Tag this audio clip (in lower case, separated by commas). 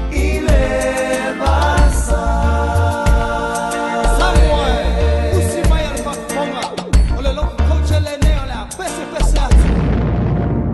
reggae, music